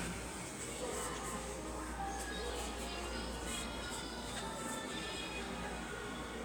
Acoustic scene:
subway station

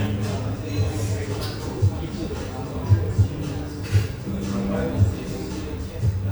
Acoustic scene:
cafe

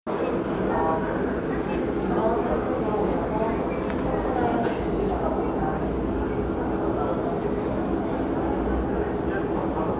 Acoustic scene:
crowded indoor space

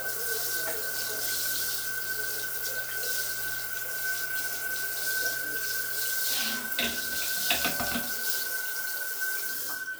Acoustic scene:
restroom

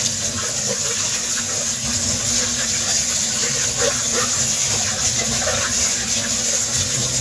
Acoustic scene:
kitchen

